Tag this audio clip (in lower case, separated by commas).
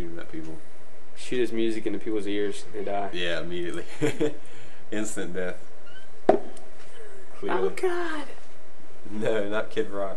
speech